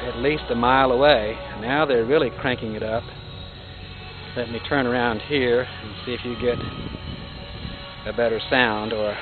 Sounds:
music
speech

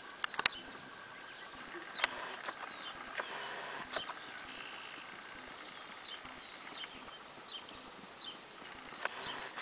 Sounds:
clip-clop
animal

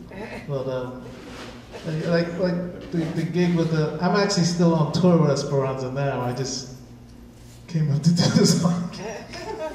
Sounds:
speech

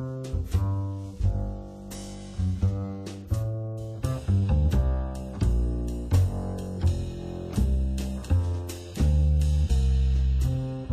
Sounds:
musical instrument
guitar
blues
plucked string instrument
music
acoustic guitar
strum

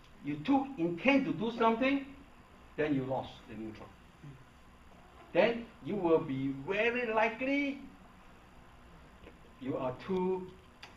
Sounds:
speech

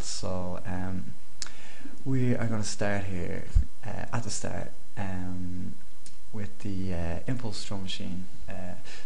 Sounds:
speech

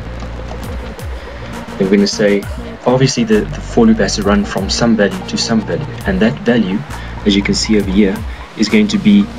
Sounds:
music
speech

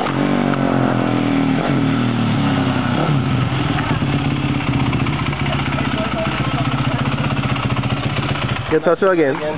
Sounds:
speech

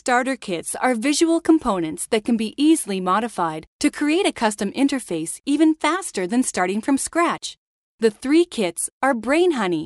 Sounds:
speech

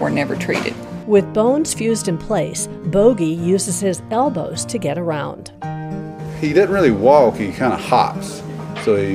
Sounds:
speech
music

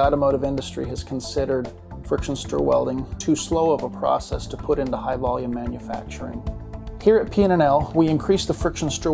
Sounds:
speech
music

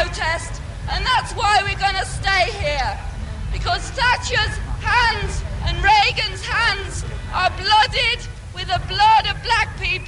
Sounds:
speech

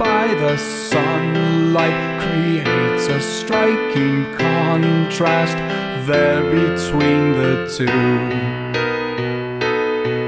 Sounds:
happy music
music

